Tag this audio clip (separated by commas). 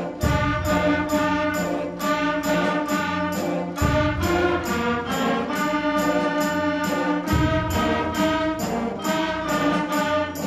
Music, Jingle bell